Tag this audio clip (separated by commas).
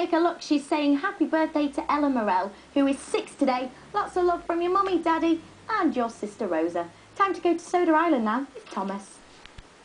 Speech